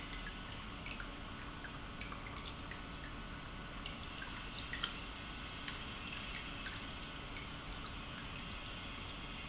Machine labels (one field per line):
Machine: pump